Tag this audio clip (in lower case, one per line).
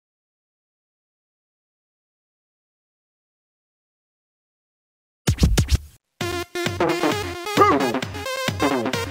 reggae
music of latin america
music
drum machine